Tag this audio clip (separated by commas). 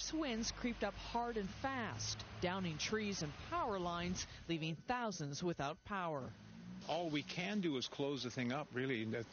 Speech